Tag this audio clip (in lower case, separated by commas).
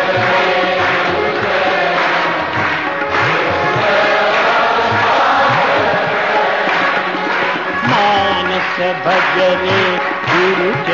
music, male singing